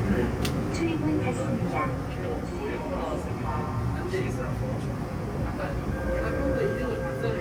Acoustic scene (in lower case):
subway train